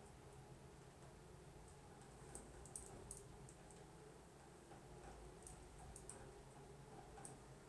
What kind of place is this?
elevator